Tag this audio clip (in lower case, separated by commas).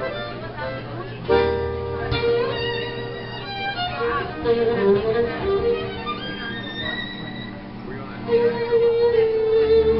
musical instrument, violin, speech, music